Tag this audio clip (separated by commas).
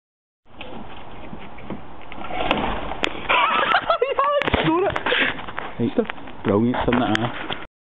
Door, Speech